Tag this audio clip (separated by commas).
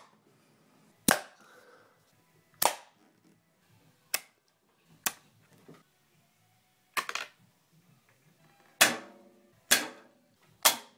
Arrow